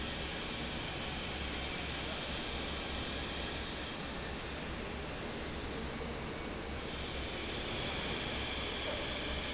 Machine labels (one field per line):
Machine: fan